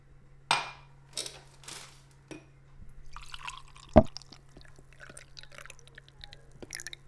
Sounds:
Liquid, Fill (with liquid), Glass

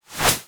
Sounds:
swoosh

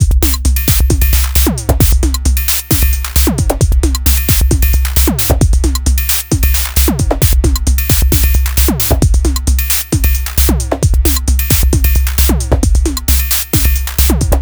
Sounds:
Musical instrument, Percussion, Drum kit, Music

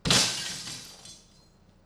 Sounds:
Glass, Shatter

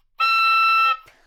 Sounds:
Music, Musical instrument, woodwind instrument

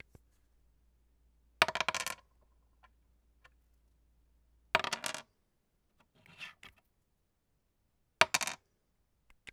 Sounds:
Wood

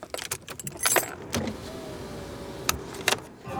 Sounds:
Car, Motor vehicle (road), Vehicle

